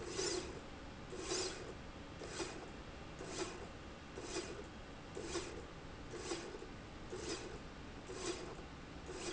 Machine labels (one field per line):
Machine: slide rail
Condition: normal